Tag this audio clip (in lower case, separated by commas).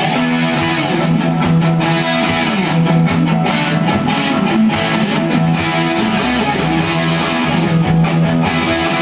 music, plucked string instrument, guitar, electric guitar, musical instrument, bass guitar